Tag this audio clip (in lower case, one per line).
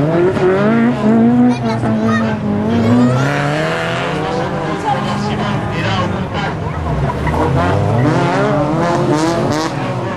motor vehicle (road)
vehicle
car passing by
speech
car